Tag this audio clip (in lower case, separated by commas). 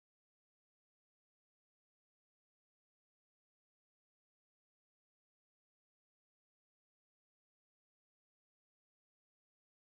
music